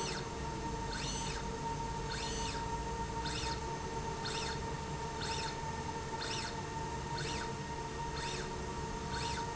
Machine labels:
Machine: slide rail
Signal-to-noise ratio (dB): -6 dB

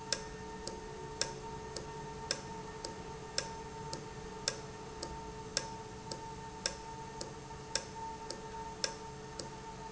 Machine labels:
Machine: valve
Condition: normal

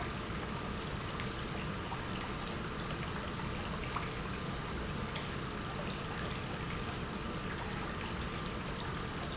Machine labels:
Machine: pump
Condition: normal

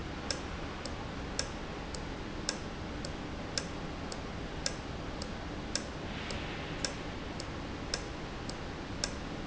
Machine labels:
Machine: valve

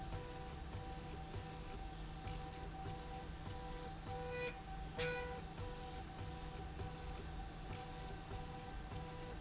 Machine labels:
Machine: slide rail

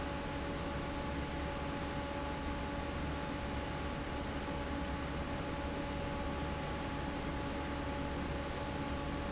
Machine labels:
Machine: fan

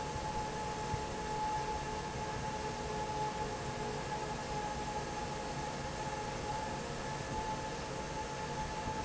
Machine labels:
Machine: fan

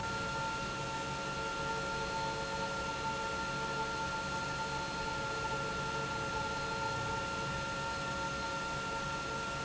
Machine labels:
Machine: pump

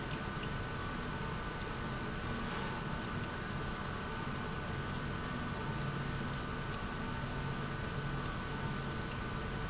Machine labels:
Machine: pump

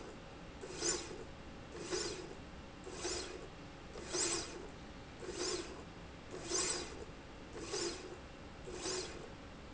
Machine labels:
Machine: slide rail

